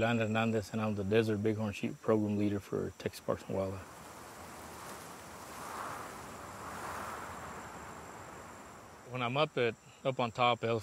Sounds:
Speech

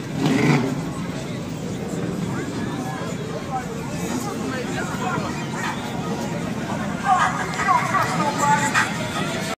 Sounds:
Speech

